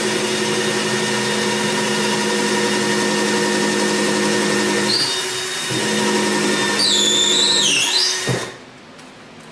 A drill tool works